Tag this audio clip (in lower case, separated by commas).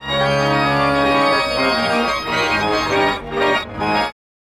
musical instrument, organ, keyboard (musical), music